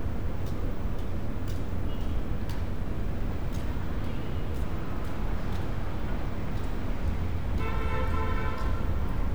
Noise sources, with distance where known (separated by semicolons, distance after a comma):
car horn